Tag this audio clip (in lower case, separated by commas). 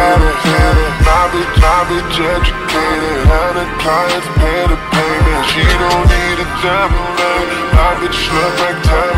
music